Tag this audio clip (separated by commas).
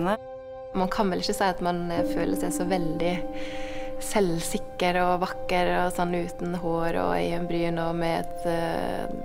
Music, Speech